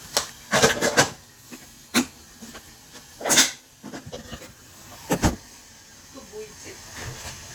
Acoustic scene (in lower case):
kitchen